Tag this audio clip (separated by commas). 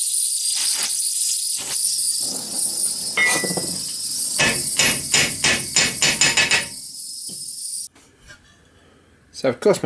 Speech